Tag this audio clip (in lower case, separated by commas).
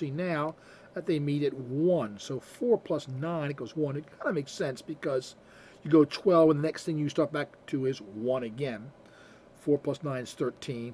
speech